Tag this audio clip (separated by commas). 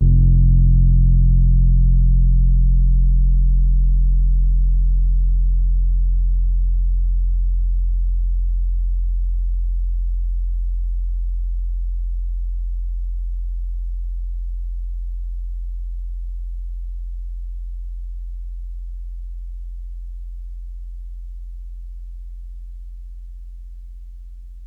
Music, Keyboard (musical), Musical instrument, Piano